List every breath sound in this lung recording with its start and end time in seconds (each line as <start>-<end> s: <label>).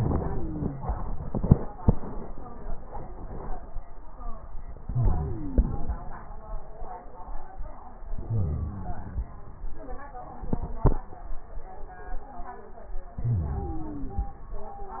0.00-0.89 s: inhalation
0.00-0.89 s: wheeze
4.70-5.90 s: inhalation
4.70-5.90 s: wheeze
8.15-9.34 s: wheeze
13.21-14.41 s: inhalation
13.21-14.41 s: wheeze